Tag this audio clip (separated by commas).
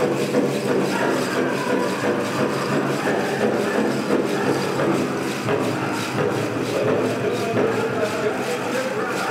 Music, Speech